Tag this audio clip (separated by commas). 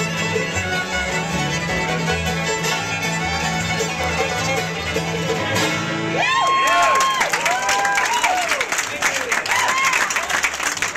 Musical instrument, Music, Banjo, Plucked string instrument, Guitar, Bowed string instrument, Violin, Speech